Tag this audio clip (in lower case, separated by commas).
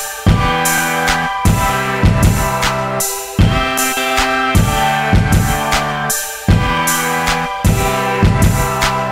pop music, music